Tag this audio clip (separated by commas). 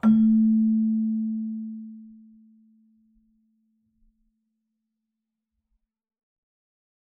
Keyboard (musical), Musical instrument, Music